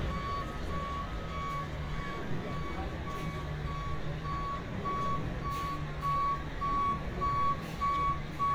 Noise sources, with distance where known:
reverse beeper

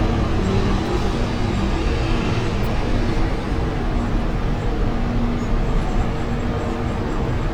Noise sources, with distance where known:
large-sounding engine, near

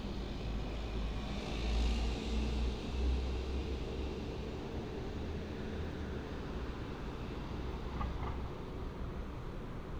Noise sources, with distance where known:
large-sounding engine, near

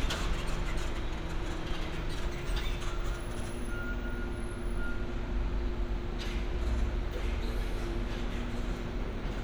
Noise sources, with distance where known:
engine of unclear size, near

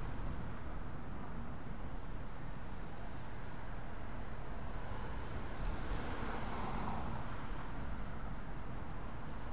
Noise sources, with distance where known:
medium-sounding engine

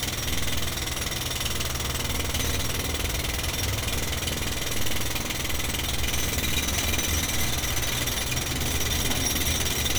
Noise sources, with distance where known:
jackhammer, near

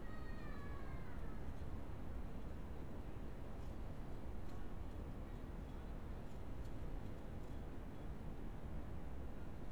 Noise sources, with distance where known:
unidentified human voice

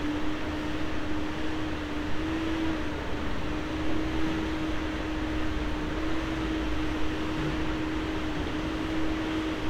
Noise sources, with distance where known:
engine of unclear size

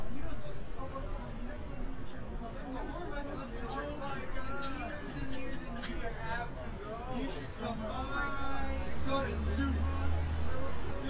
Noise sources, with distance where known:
person or small group talking, near

